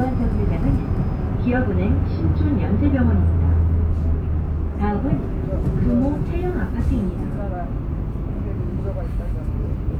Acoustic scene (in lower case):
bus